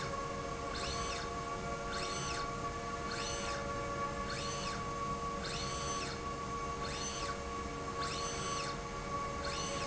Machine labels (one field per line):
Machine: slide rail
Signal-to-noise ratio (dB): -6 dB